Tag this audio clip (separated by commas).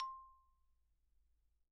Mallet percussion, Percussion, Musical instrument, xylophone, Music